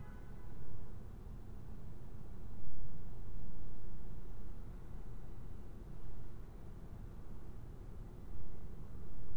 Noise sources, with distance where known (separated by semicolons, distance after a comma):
car horn, far